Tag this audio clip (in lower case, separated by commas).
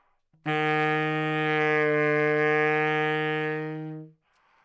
musical instrument, woodwind instrument, music